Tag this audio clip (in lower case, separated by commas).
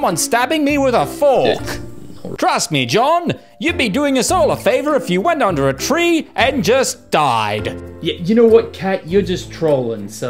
music, speech